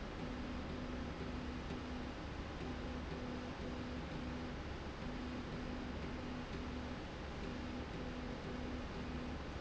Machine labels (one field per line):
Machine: slide rail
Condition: normal